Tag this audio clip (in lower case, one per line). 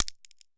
crack